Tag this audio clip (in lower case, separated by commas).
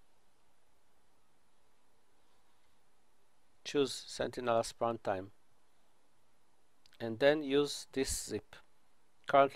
speech